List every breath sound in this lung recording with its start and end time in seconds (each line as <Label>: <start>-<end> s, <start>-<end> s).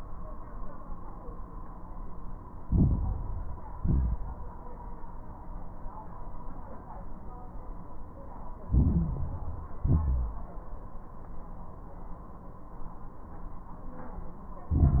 Inhalation: 2.62-3.76 s, 8.66-9.80 s, 14.71-15.00 s
Exhalation: 3.78-4.51 s, 9.81-10.53 s
Crackles: 2.62-3.76 s, 3.78-4.51 s, 8.66-9.80 s, 9.81-10.53 s, 14.71-15.00 s